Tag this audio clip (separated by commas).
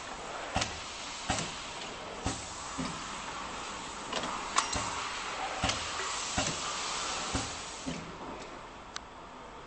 clink